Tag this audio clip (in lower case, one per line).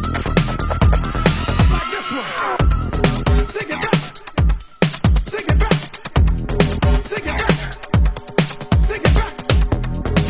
disco
funk
music